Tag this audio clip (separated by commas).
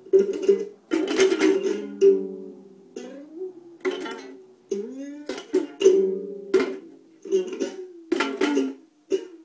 Music, inside a small room, Ukulele